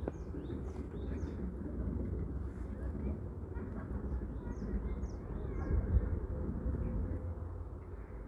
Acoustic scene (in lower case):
residential area